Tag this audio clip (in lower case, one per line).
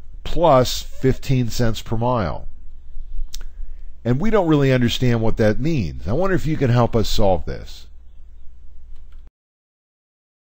speech